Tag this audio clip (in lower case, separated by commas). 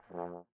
music, musical instrument, brass instrument